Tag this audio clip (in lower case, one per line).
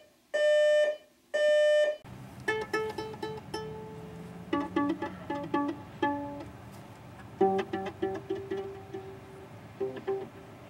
music